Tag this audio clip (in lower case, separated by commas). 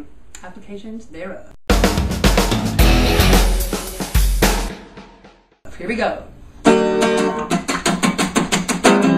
pop music, jazz, speech, music